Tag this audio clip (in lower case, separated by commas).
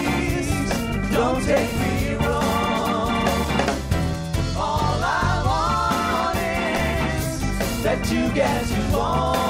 ska, singing, music